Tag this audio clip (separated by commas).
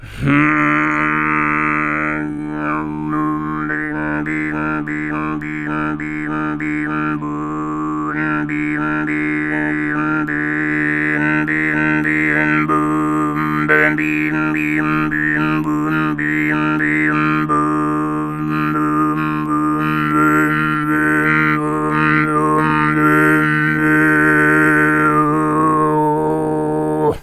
Human voice, Singing